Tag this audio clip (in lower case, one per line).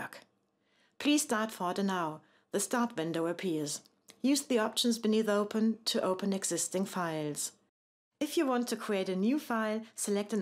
speech